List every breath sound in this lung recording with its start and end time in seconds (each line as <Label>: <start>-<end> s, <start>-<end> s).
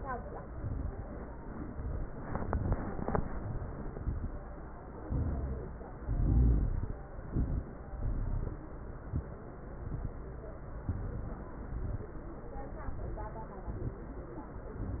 Inhalation: 0.45-1.02 s, 2.18-2.75 s, 3.23-3.87 s, 5.01-5.83 s, 7.22-7.81 s, 8.99-9.46 s, 10.85-11.53 s, 12.75-13.43 s
Exhalation: 1.52-2.09 s, 2.73-3.21 s, 3.93-4.58 s, 5.98-7.01 s, 7.90-8.62 s, 9.77-10.24 s, 11.57-12.25 s, 13.62-14.31 s
Crackles: 0.43-1.00 s, 1.52-2.09 s, 2.24-2.71 s, 2.73-3.21 s, 3.23-3.87 s, 3.93-4.58 s, 5.01-5.83 s, 5.98-7.01 s, 7.22-7.81 s, 7.90-8.62 s, 8.99-9.46 s, 9.77-10.24 s, 10.85-11.53 s, 11.57-12.25 s, 13.62-14.31 s